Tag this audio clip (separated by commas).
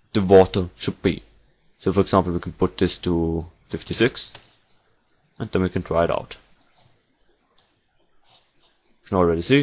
Speech